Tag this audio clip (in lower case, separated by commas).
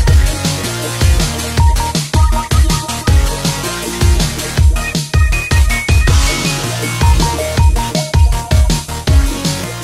music